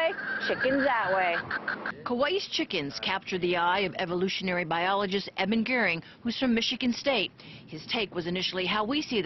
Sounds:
Speech

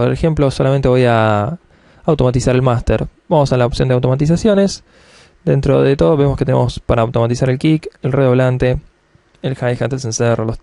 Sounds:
Speech

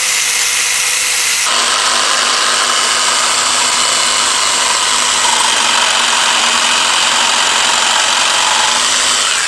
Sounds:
Power tool, Tools

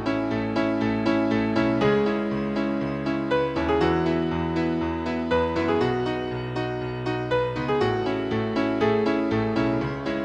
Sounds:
Music

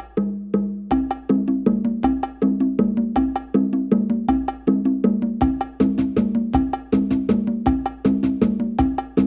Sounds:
Music

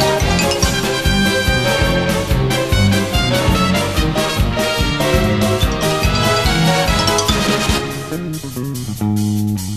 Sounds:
Soundtrack music, Music

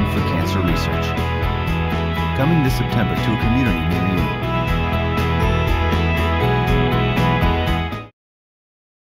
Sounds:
Music, Speech

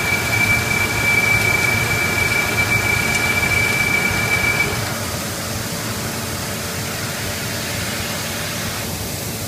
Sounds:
Tools

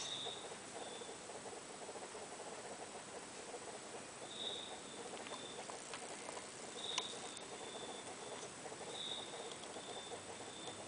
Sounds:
inside a small room

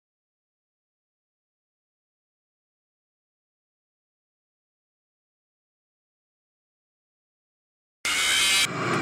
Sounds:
Silence

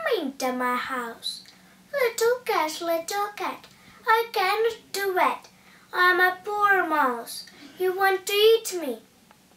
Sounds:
Speech

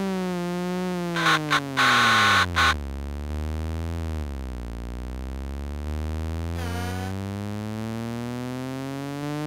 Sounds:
Sound effect

